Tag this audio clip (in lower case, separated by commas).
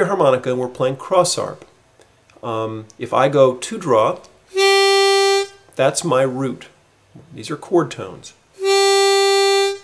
woodwind instrument, blues, harmonica, speech